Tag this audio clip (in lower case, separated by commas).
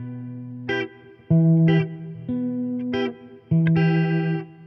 plucked string instrument, music, guitar, musical instrument, electric guitar